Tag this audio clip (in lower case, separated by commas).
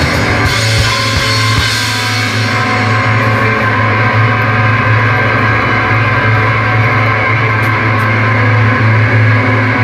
punk rock, music, musical instrument, drum, guitar, rock music